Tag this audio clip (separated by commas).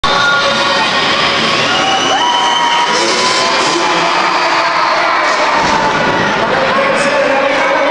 Vehicle, Speech